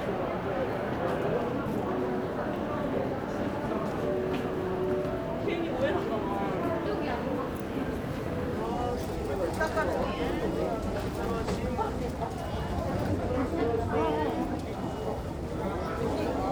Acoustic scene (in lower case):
crowded indoor space